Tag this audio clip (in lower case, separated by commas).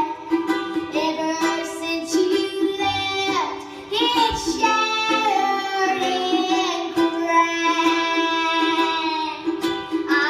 singing, music, inside a large room or hall